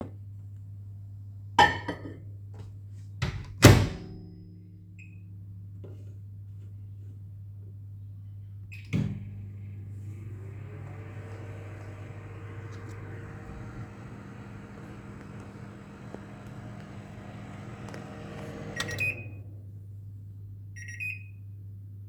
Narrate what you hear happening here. I put my food in the microwave, then started it. Then my food was ready to eat.